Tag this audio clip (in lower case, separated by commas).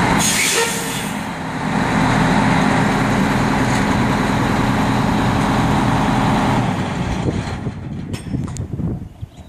air brake, vehicle